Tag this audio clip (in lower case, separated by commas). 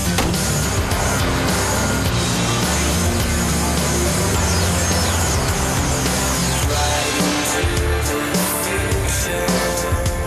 music